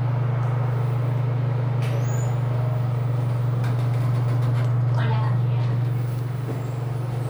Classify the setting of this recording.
elevator